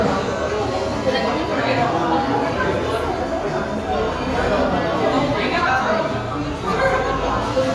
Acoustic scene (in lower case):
crowded indoor space